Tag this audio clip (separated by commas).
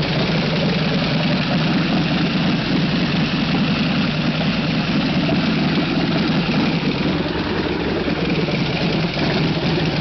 Engine, Vehicle